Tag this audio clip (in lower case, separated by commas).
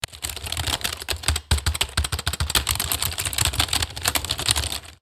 typing, home sounds